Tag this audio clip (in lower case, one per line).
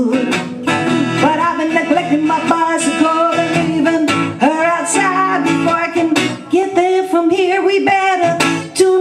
music